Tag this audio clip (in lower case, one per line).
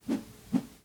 swoosh